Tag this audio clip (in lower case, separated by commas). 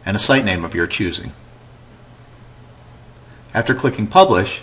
speech